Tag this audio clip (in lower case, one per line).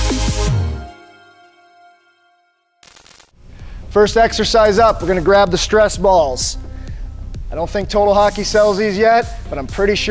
music
speech